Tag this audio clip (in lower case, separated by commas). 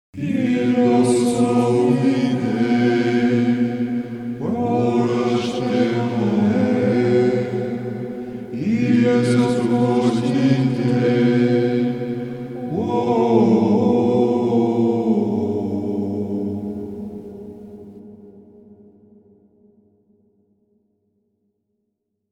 singing, music, musical instrument, human voice